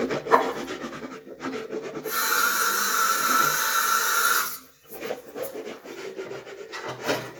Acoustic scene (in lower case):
restroom